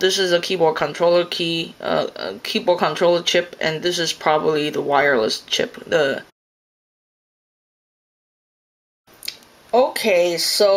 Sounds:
speech

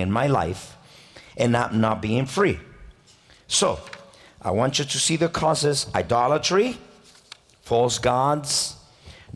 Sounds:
speech

